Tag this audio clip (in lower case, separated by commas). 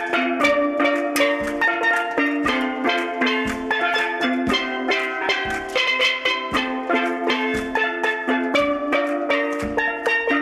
playing steelpan